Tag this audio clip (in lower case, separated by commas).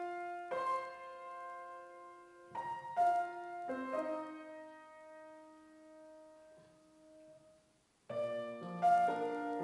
musical instrument, keyboard (musical), music, piano